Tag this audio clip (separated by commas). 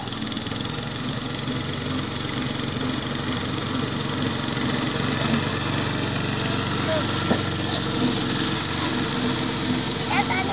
lawn mowing